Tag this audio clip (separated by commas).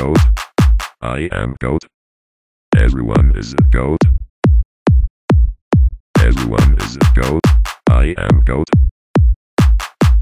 Music, Speech